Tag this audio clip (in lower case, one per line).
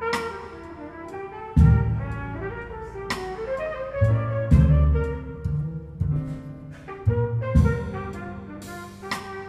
playing trumpet
trumpet
brass instrument